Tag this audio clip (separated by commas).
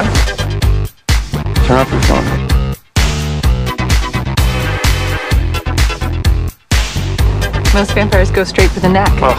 Speech, Music, Disco